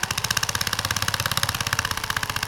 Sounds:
Tools

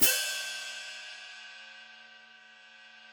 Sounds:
Hi-hat, Musical instrument, Cymbal, Music, Percussion

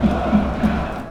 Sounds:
Crowd, Human group actions

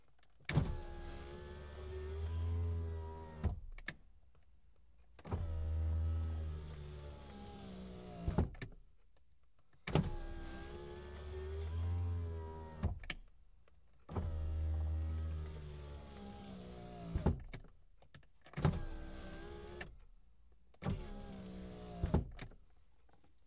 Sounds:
Motor vehicle (road), Vehicle

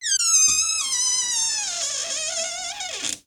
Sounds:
Door, Domestic sounds

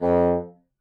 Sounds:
Wind instrument, Music, Musical instrument

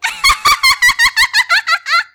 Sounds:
Laughter, Human voice

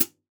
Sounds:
Music, Percussion, Cymbal, Musical instrument, Hi-hat

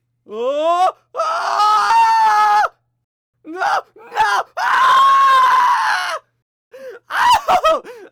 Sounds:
Human voice, Screaming

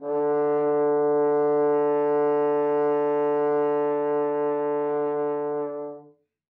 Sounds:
Music, Musical instrument, Brass instrument

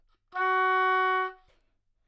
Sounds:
Music, Musical instrument, woodwind instrument

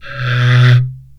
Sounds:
Wood

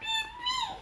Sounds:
Human voice, Speech

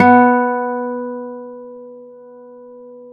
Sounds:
Acoustic guitar, Plucked string instrument, Musical instrument, Music, Guitar

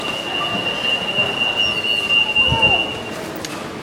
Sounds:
Alarm

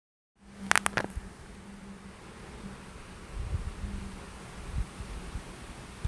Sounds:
Hands

